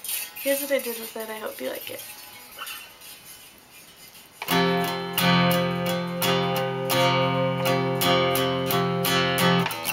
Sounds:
Speech, Music

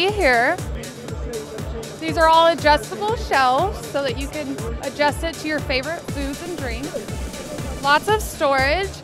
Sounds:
Speech, Music

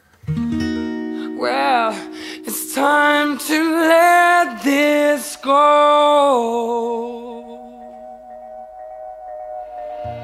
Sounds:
Music

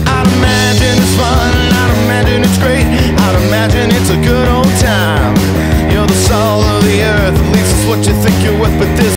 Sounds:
Strum, Plucked string instrument, Guitar, Electric guitar, Musical instrument, Music

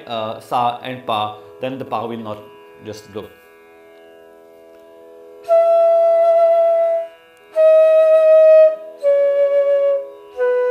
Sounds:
playing flute

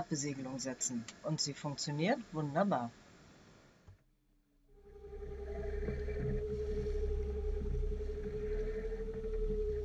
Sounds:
Speech, Boat

